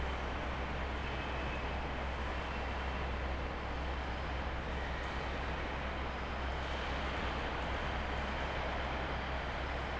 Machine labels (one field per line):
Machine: fan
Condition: abnormal